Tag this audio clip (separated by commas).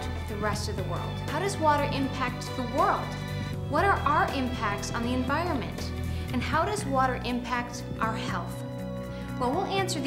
Music, Speech